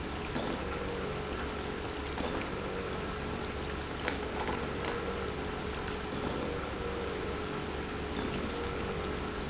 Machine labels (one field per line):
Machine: pump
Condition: abnormal